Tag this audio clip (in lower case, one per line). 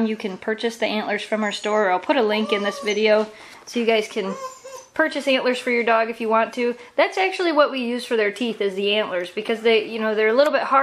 speech